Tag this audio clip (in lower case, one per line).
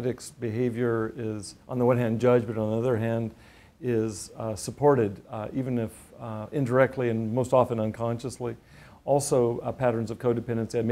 speech